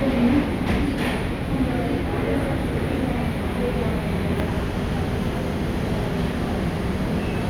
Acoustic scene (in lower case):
subway station